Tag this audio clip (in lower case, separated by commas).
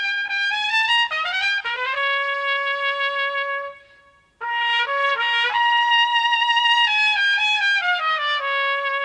music, trumpet